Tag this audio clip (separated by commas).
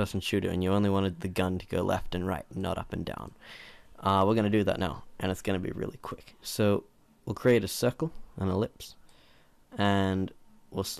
Speech